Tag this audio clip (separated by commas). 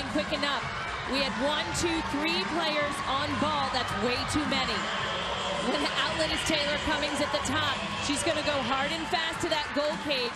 playing lacrosse